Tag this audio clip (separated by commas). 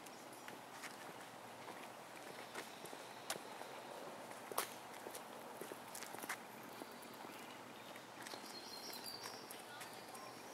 outside, rural or natural